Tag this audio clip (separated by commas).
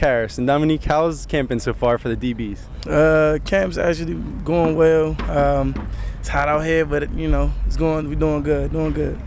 Speech